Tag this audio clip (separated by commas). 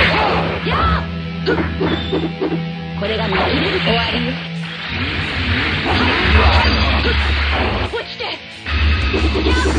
Speech, Music